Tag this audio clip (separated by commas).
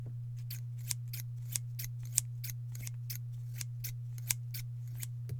Domestic sounds, Scissors